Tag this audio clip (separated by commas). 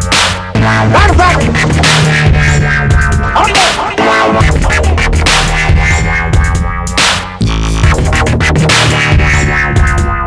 Music, Electronic music, Dubstep